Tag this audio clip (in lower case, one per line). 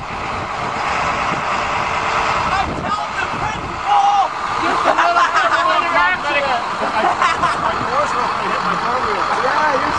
speech
vehicle
bus